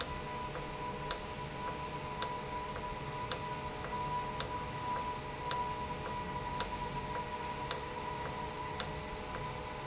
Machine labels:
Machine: valve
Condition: normal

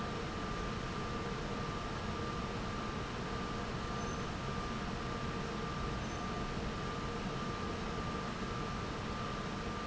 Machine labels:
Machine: fan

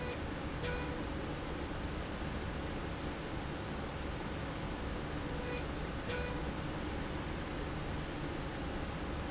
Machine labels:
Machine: slide rail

